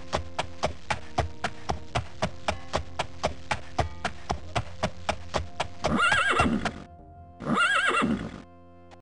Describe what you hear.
A horse quickly clop clips before letting out a neigh